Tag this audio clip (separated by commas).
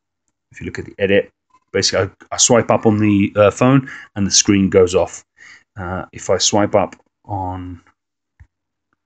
Speech